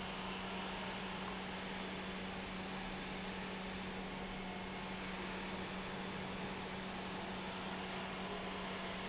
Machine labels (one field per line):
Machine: pump